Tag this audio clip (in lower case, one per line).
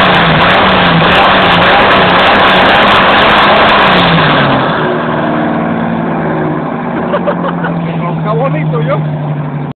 speech